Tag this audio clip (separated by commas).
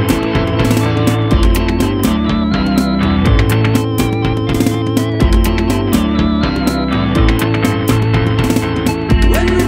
Music